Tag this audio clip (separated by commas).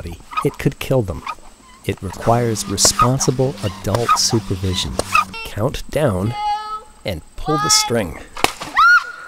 Speech